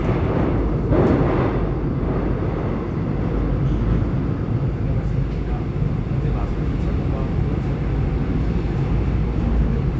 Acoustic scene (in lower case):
subway train